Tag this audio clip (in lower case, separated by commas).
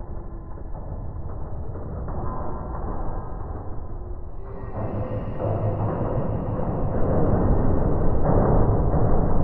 music, electronic music, ambient music